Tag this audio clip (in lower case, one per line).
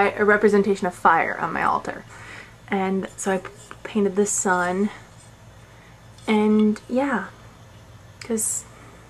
speech